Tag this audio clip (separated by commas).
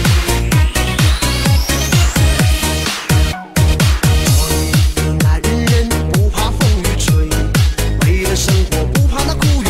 Music